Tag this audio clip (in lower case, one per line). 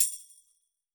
percussion
musical instrument
tambourine
music